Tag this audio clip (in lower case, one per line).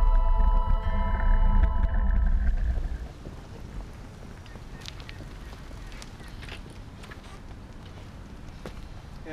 speech
bicycle